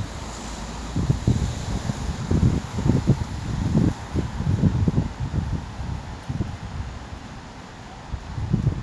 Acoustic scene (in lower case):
street